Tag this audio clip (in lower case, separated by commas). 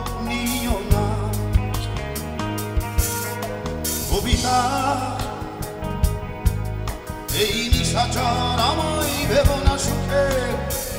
music, blues